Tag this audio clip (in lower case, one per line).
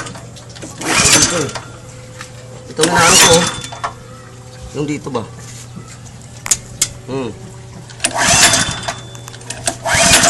speech